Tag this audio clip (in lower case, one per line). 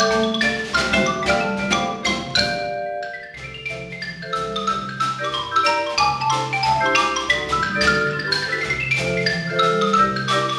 mallet percussion
xylophone
percussion
glockenspiel